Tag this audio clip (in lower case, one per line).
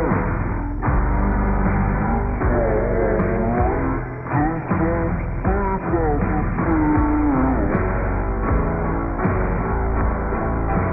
music